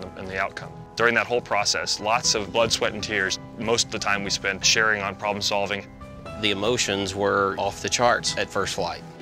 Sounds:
Speech, Music

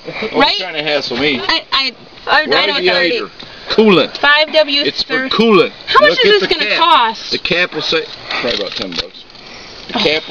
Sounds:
Speech

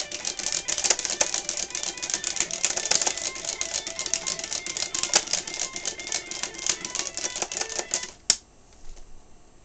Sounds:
Music, Musical instrument, Guitar

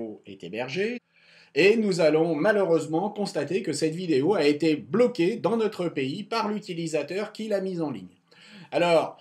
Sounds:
Speech

